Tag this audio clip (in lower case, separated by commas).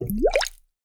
water, gurgling